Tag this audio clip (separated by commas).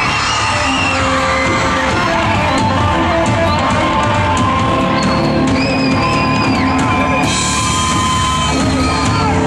Music